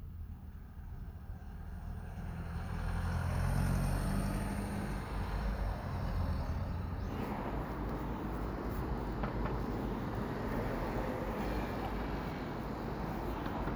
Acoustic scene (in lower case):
residential area